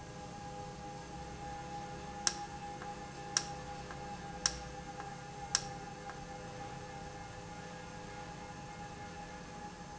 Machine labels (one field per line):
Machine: valve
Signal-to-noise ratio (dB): 0 dB